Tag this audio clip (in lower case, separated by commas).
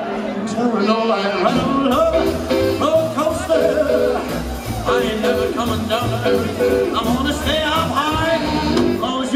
music of latin america, music, singing